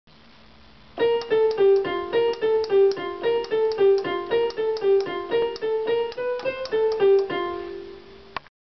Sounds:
Music

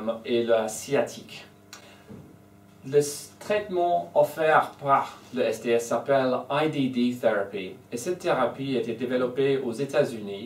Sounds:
Speech

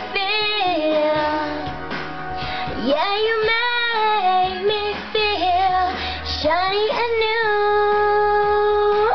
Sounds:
Female singing, Music

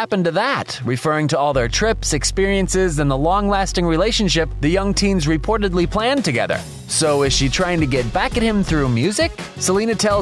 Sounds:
Speech, Music

